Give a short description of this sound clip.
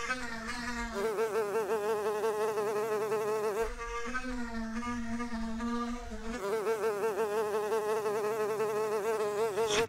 Insects are buzzing, followed by a swoosh